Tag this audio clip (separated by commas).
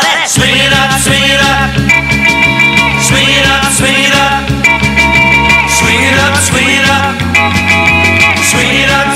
Music